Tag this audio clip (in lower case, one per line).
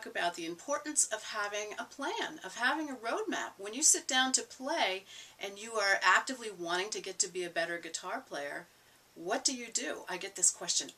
speech